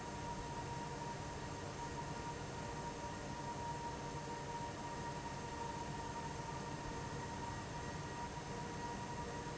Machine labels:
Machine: fan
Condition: abnormal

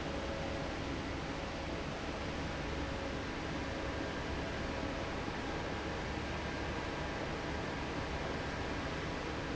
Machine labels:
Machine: fan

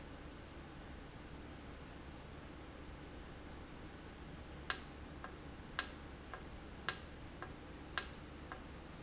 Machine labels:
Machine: valve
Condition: normal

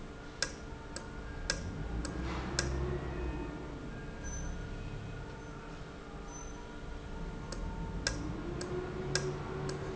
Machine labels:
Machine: valve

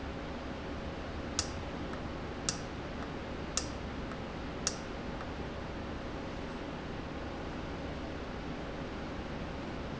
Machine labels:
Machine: valve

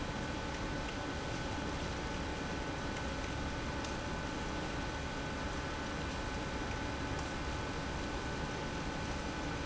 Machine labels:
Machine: pump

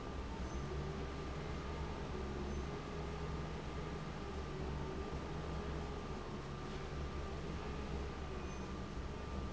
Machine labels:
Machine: fan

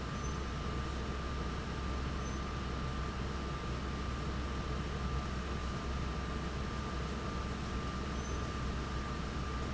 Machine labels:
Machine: fan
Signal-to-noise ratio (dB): -6 dB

